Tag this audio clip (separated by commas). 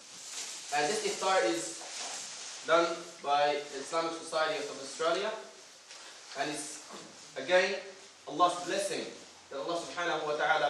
Speech, Male speech, Narration